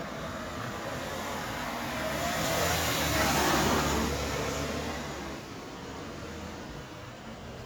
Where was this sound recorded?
on a street